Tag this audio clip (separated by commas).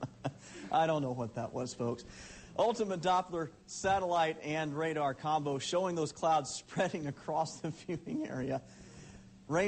Speech